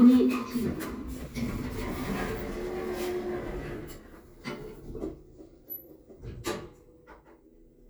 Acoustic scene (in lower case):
elevator